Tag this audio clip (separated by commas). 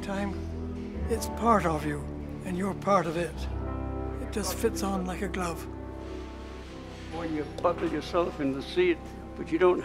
Music, Speech